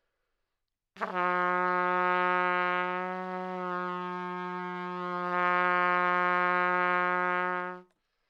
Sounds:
music, brass instrument, trumpet, musical instrument

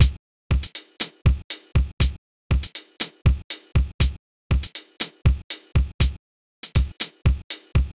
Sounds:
musical instrument, drum, bass drum, drum kit, percussion, music

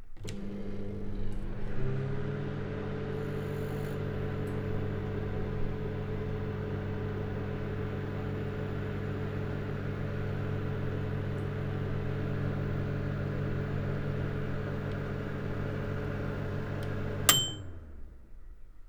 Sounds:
home sounds, microwave oven

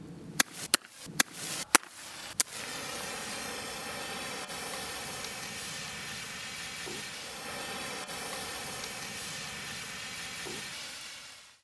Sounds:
fire

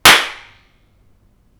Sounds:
clapping, hands

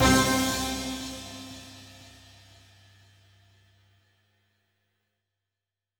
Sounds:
musical instrument, music

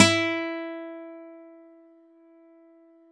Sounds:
guitar, music, musical instrument, acoustic guitar, plucked string instrument

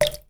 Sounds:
water, liquid, drip

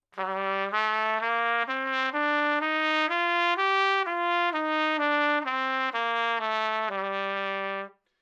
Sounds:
music, brass instrument, trumpet, musical instrument

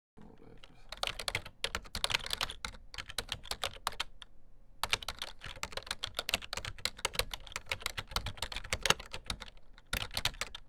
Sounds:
typing, computer keyboard, domestic sounds

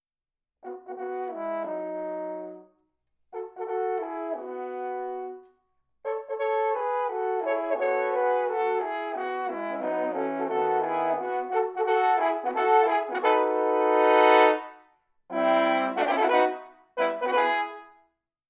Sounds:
music, brass instrument, musical instrument

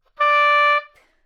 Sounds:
musical instrument, wind instrument, music

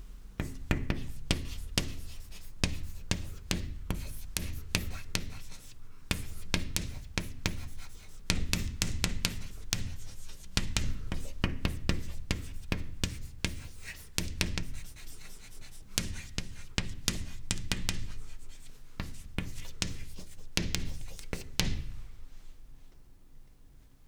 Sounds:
writing, home sounds

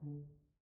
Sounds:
music, brass instrument, musical instrument

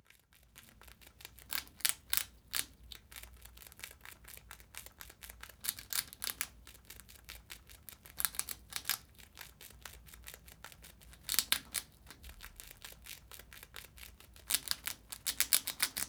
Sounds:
wild animals, animal

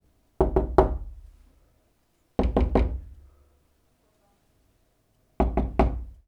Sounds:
knock, domestic sounds, door

